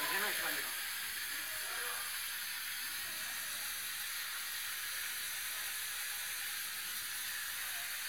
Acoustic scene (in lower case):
restaurant